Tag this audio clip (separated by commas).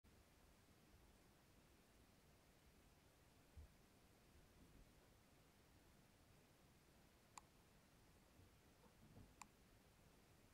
Silence